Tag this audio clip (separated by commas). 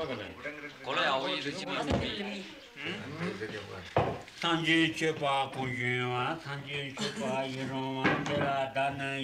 Laughter, Speech